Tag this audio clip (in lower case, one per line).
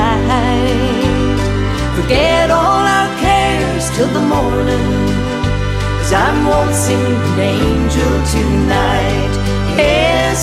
singing
music